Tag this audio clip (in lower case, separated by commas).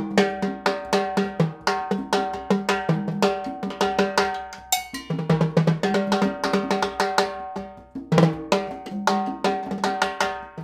playing timbales